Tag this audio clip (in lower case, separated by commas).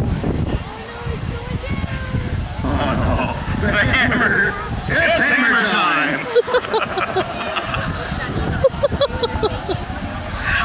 boat, speech